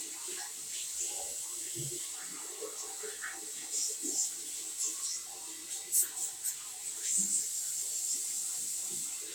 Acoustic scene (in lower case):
restroom